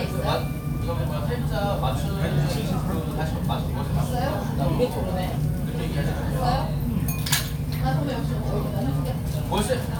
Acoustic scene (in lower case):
crowded indoor space